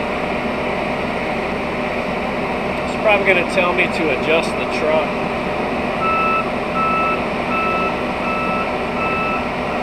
A man speaks as a vehicle beeps